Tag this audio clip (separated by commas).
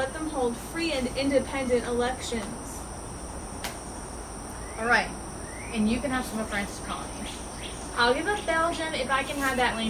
inside a large room or hall, Speech